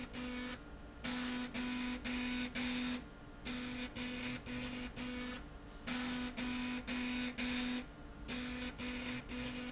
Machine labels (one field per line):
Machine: slide rail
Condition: abnormal